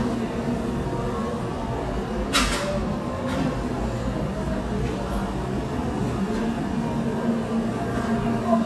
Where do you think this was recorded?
in a cafe